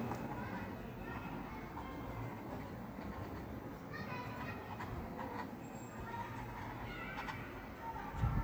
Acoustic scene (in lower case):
park